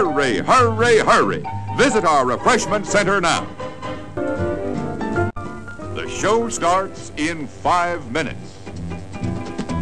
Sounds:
speech, music

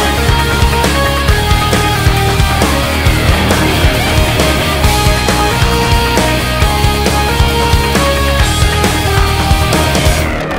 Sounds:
music

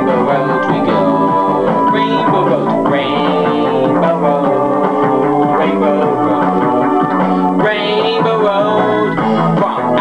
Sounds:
music

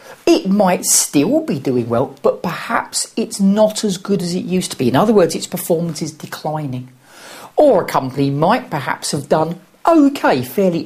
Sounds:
speech

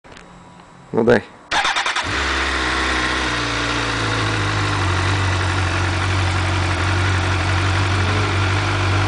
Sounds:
outside, urban or man-made, vehicle, motorcycle, speech

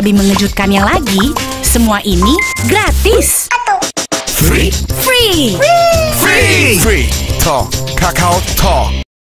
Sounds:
speech, music

